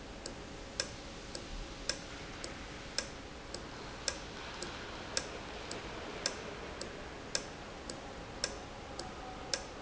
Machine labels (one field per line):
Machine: valve